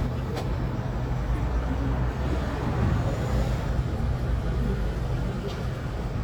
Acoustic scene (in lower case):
street